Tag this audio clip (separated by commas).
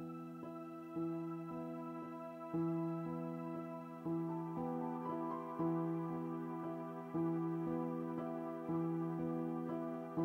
Lullaby, Music